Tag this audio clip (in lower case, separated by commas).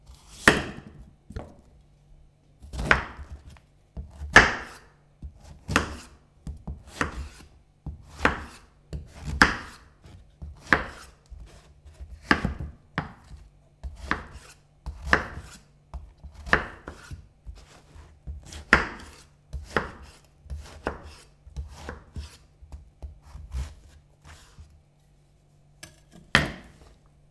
domestic sounds